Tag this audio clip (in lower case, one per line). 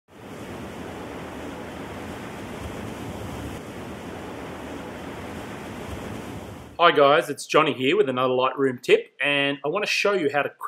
pink noise